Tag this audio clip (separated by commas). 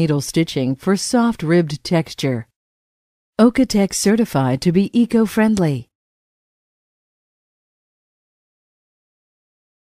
Speech